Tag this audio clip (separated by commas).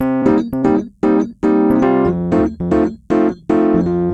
Piano, Musical instrument, Keyboard (musical), Music